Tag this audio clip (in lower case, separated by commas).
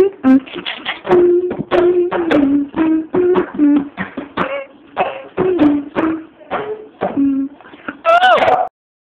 speech, music